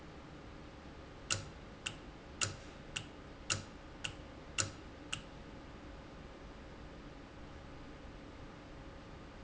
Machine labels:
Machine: valve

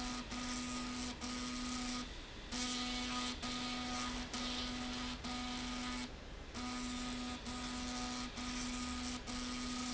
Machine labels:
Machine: slide rail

